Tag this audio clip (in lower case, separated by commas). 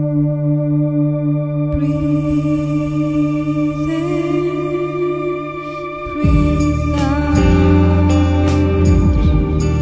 music